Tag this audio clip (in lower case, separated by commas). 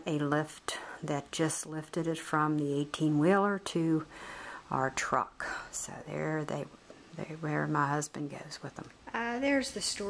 speech